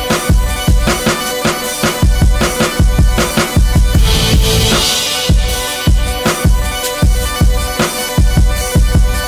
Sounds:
Dance music, Music

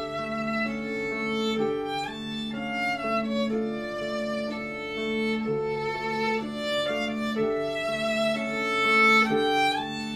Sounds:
Musical instrument, Violin, Music

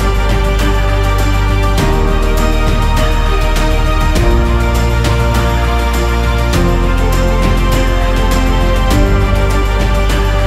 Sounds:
Music

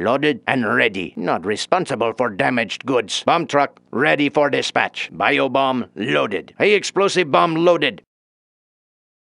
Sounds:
Speech

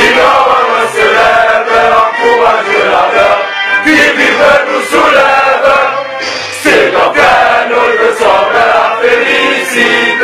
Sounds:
Music

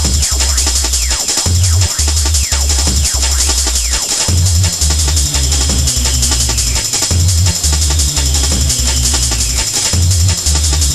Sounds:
Music, Happy music, Jazz

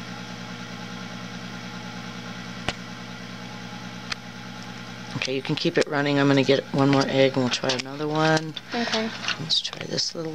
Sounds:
Speech

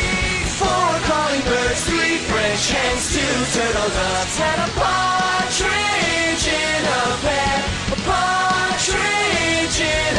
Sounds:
Music

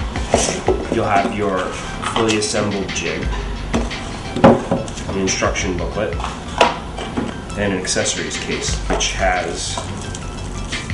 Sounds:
Music, Speech

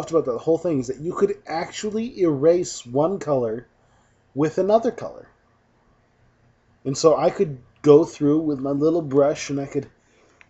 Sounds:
Speech

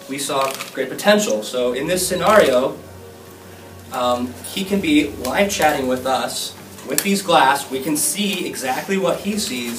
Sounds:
Speech, Music

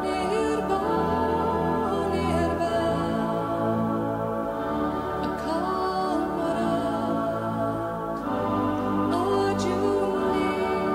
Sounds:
Music

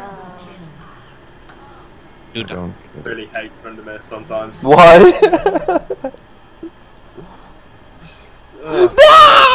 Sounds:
Male speech, Speech, Conversation

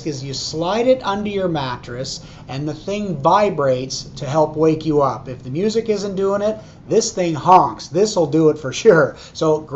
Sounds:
Speech

